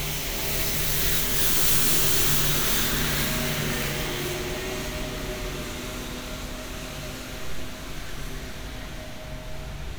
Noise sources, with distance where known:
engine of unclear size

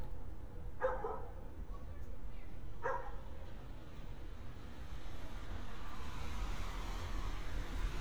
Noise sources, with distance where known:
medium-sounding engine, near
dog barking or whining, near

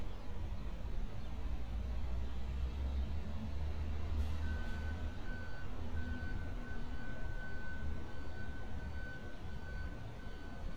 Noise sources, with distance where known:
reverse beeper, far

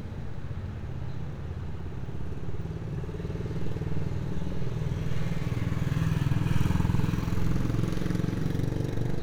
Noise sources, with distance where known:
medium-sounding engine
large-sounding engine

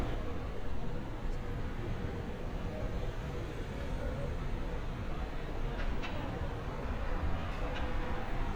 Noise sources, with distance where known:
non-machinery impact, far

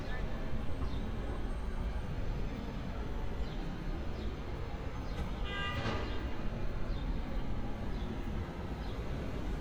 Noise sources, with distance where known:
car horn, near

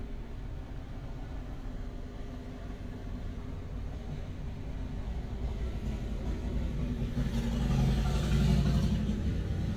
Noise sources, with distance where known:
medium-sounding engine

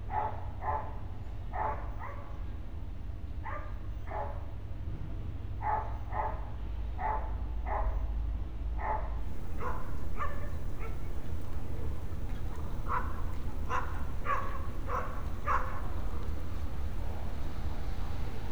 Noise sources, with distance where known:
dog barking or whining, far

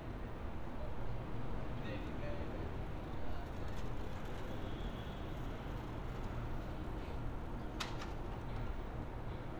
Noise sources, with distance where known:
person or small group talking

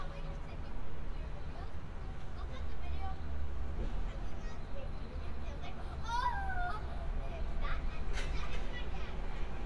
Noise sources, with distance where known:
person or small group talking, near

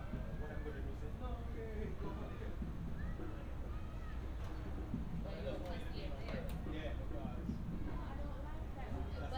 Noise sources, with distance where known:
background noise

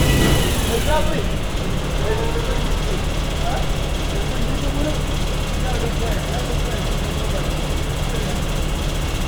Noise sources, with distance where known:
unidentified impact machinery, near
person or small group talking

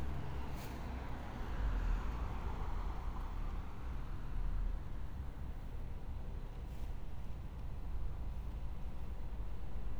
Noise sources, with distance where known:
engine of unclear size

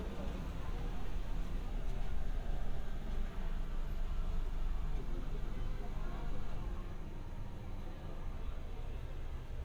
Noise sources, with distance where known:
unidentified human voice, far

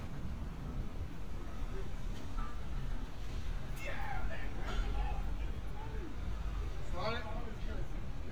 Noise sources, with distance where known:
person or small group talking

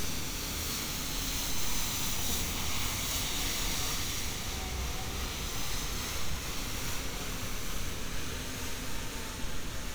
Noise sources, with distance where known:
unidentified powered saw, near

